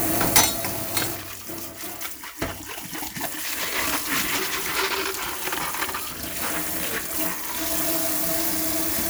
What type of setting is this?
kitchen